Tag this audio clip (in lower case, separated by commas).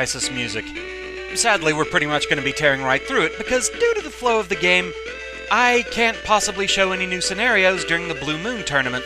speech